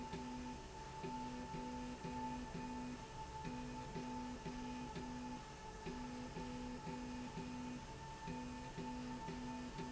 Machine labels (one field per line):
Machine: slide rail